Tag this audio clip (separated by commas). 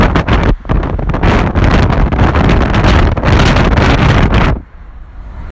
Wind